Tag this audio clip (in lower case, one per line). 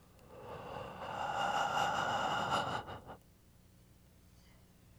breathing
respiratory sounds